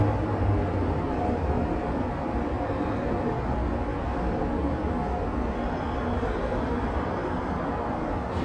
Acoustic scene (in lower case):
subway station